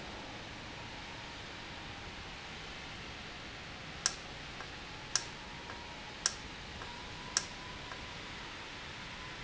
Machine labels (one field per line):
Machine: valve